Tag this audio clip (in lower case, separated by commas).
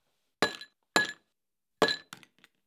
glass